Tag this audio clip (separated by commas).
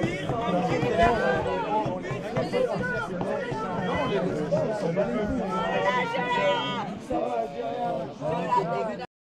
Speech